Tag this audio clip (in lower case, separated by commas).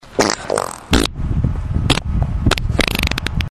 fart